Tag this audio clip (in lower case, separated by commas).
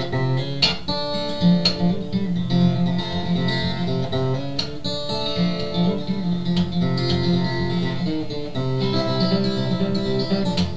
acoustic guitar, plucked string instrument, music, musical instrument, guitar